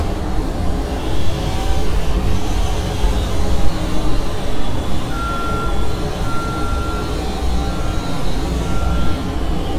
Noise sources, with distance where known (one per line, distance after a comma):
reverse beeper, near